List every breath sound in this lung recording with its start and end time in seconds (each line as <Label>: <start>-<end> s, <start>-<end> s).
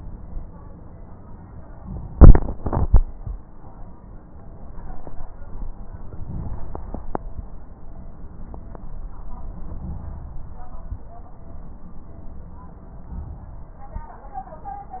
Inhalation: 6.04-7.46 s, 9.52-10.94 s, 13.05-14.10 s